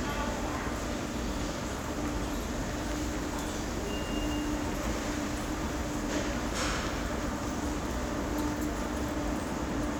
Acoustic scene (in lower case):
subway station